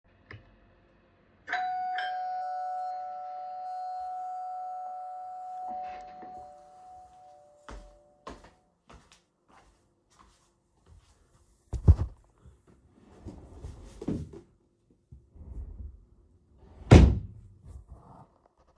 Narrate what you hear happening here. A doorbell rang clearly from the front of the house. I walked through the hallway with audible footsteps toward the entrance. I opened the wardrobe drawer near the door to retrieve something before walking back.